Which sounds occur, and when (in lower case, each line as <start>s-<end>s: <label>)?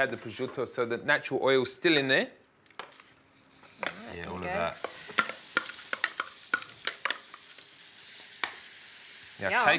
3.9s-9.7s: conversation
4.8s-9.7s: sizzle
7.0s-7.1s: generic impact sounds
8.4s-8.6s: stir
9.4s-9.7s: male speech
9.4s-9.7s: female speech